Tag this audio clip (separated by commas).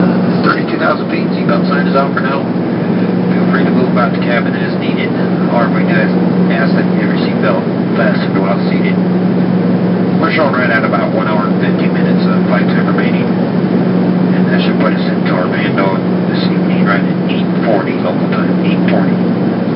Fixed-wing aircraft, Aircraft, Vehicle